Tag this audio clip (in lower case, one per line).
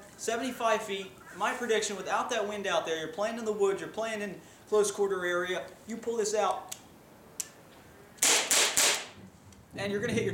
speech
inside a large room or hall